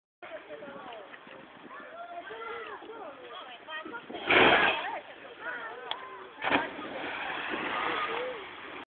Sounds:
speech

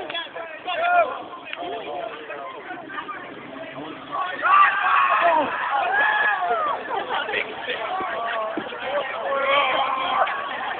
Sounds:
speech

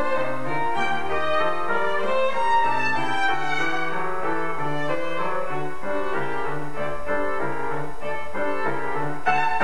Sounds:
musical instrument, music, fiddle

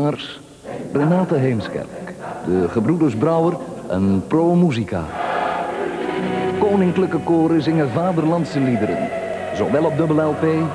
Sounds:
music, speech

